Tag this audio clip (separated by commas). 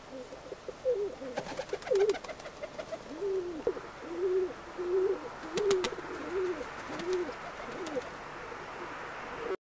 dove, outside, urban or man-made, Bird